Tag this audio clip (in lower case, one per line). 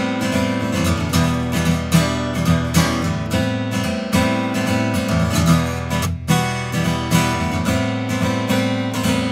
strum
acoustic guitar
music